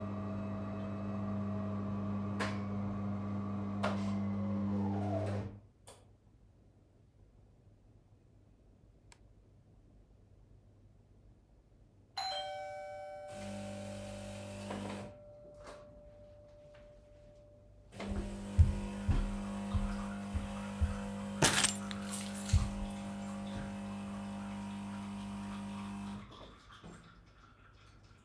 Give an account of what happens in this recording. I was making coffee, the dorbell rang, I grabbed the keys and left the room to go to the door.